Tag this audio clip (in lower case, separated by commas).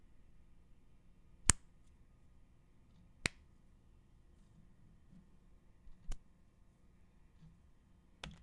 hands